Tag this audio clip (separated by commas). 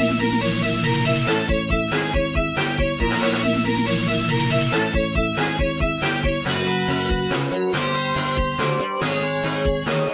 Music